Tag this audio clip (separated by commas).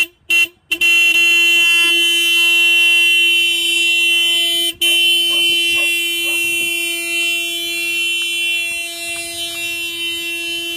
car horn